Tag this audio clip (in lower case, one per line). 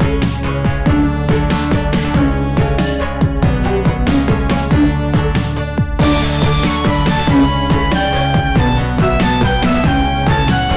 music